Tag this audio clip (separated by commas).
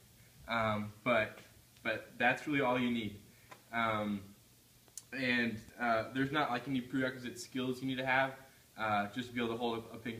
Speech